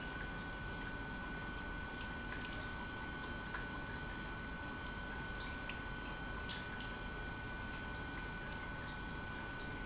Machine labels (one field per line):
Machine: pump